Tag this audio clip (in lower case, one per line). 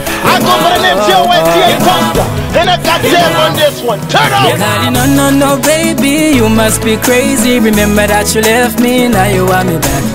music
happy music